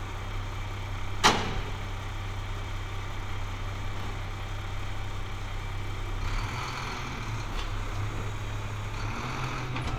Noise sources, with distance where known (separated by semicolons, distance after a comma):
engine of unclear size